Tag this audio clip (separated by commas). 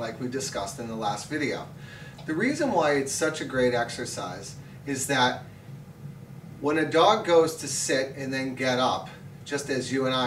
Speech